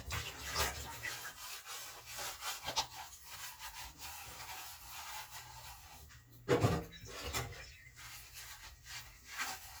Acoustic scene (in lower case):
kitchen